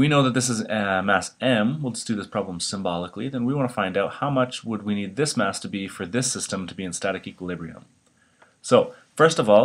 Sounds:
speech

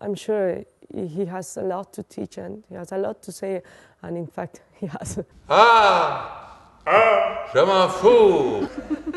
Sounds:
speech

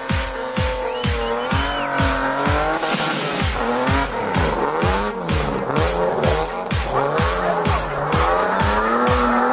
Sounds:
music, car, vehicle

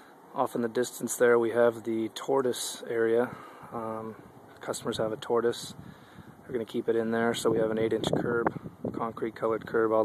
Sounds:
speech

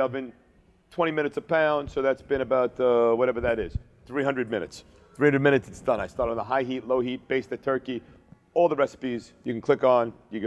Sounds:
speech

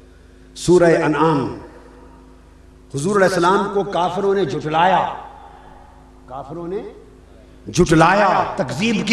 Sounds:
narration, speech synthesizer, speech, male speech

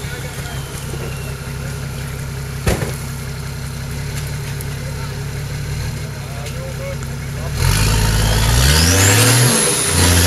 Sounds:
vehicle, speech, car

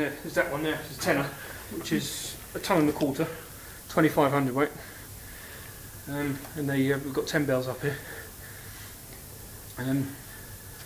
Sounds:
speech

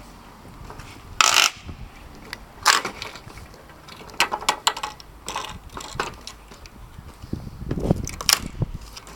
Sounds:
wood

